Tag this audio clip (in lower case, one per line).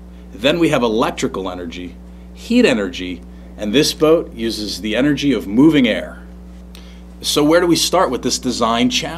speech